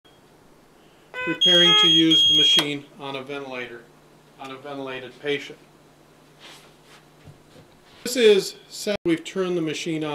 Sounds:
Speech, inside a small room

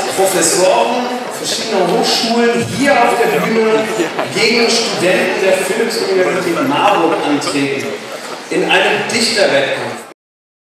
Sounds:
Speech

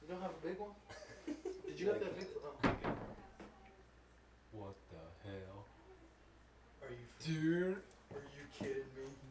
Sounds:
Speech

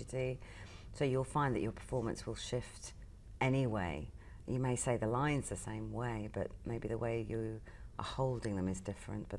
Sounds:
inside a large room or hall, Speech

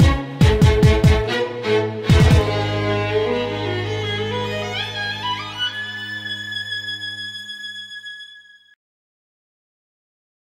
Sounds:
Violin, Music

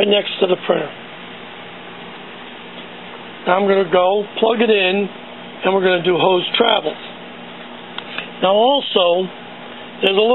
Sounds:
Speech, Printer

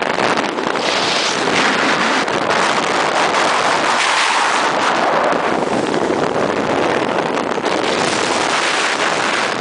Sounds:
Car, Vehicle, Motor vehicle (road)

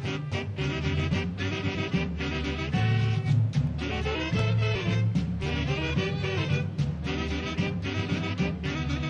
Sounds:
Swing music, Music

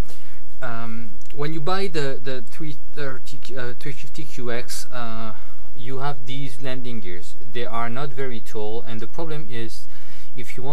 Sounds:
Speech

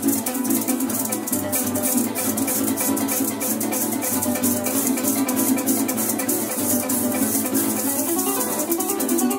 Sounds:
Music, Rattle (instrument), Musical instrument, Bowed string instrument, Harp

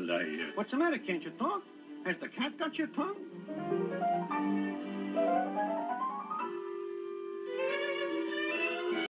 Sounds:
Music, Speech

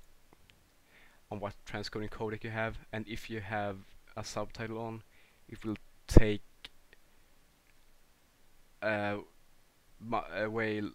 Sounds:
Speech

